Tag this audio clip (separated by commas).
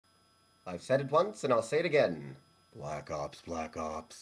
Speech